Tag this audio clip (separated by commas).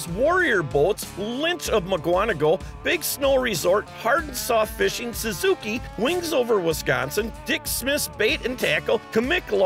Music, Speech